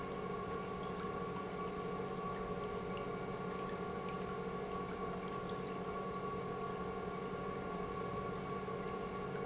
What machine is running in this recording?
pump